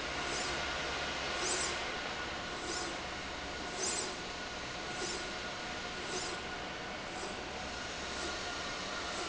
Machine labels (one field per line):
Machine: slide rail